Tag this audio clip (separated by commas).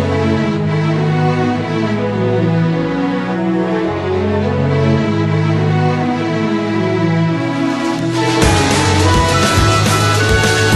Rhythm and blues, Music